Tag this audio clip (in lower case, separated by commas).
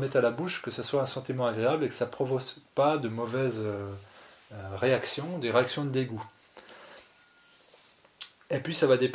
speech